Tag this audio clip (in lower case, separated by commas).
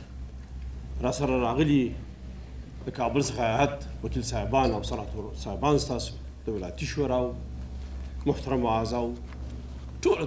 narration, male speech, speech